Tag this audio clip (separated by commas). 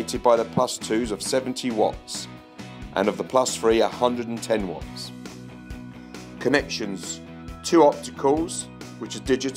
Speech, Music